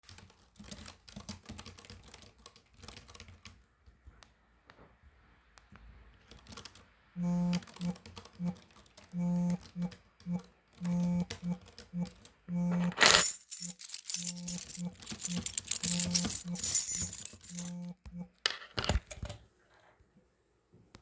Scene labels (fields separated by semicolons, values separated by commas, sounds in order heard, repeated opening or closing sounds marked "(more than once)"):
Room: office; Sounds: keyboard typing, phone ringing, keys